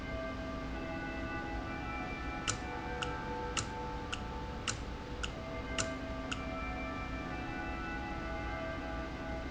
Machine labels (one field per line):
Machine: valve